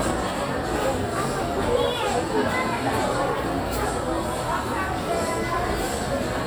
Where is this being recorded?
in a crowded indoor space